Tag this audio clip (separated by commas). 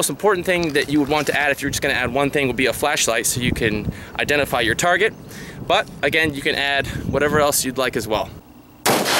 outside, rural or natural, Speech